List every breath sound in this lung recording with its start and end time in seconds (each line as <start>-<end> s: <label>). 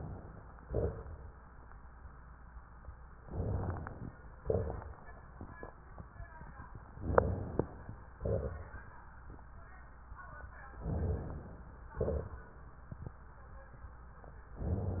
0.63-1.49 s: exhalation
3.27-4.13 s: inhalation
3.27-4.13 s: crackles
4.41-5.25 s: exhalation
4.41-5.25 s: crackles
7.01-8.14 s: inhalation
8.18-9.12 s: exhalation
10.85-11.93 s: inhalation
11.96-12.80 s: exhalation